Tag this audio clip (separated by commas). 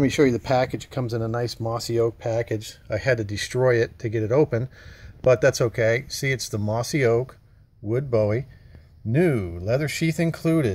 Speech